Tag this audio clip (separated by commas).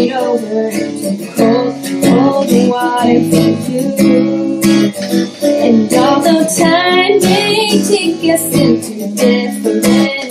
Music